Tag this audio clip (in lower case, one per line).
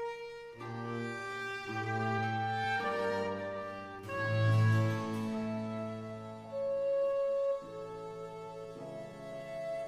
cello
bowed string instrument
violin